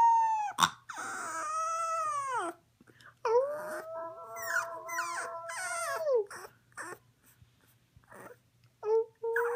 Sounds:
dog howling

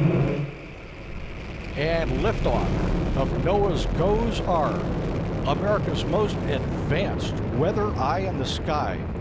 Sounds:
missile launch

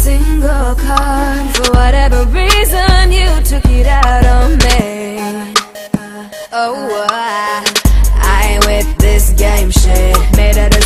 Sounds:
Music

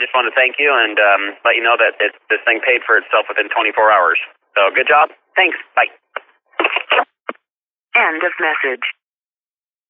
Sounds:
Speech

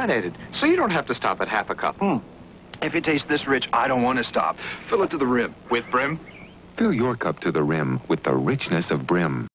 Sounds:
Speech

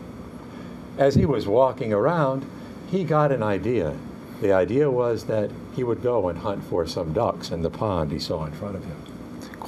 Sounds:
Speech

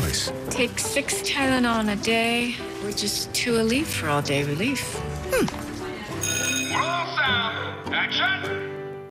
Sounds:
Music, Speech

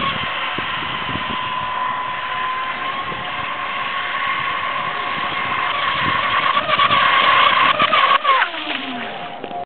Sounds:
Vehicle, speedboat, Boat

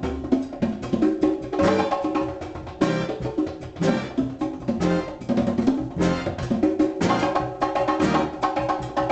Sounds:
Wood block, Music, Percussion

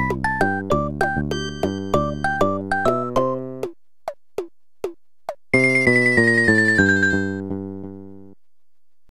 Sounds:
Music, Video game music

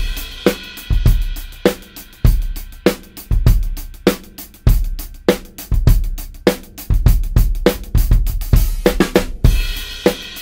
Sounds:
Bass drum, Drum, Drum kit, Snare drum, Rimshot, Percussion

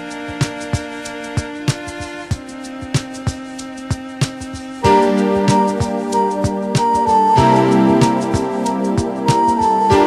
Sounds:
Music

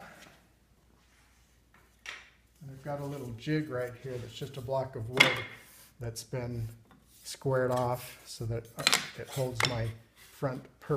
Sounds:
Speech, Wood

